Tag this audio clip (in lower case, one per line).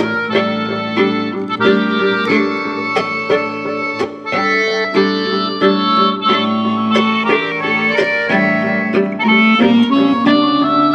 music